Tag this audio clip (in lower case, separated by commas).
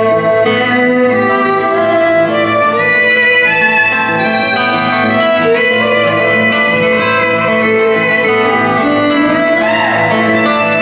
wedding music